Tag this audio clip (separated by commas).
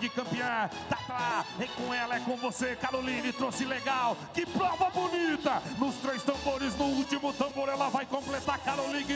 Music